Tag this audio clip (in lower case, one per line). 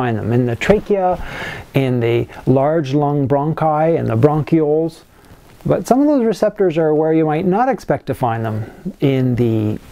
speech